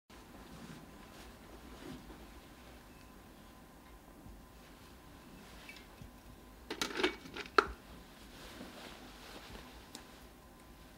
Very little sound is heard other than something being touched or moved